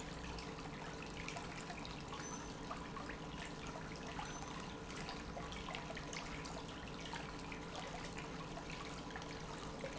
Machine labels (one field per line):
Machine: pump